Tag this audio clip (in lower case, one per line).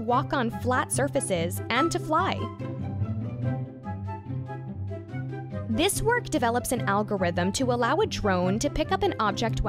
music
speech